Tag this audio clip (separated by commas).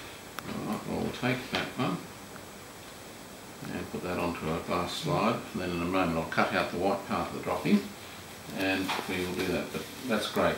Speech